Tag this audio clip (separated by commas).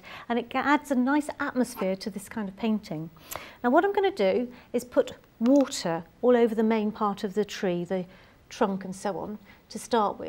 Speech